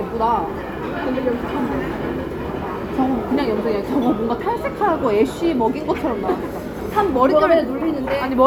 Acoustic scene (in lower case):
crowded indoor space